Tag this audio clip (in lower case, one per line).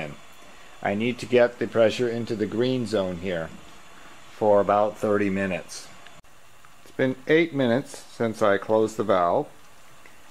speech